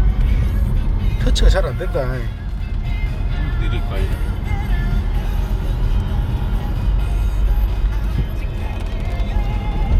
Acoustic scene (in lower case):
car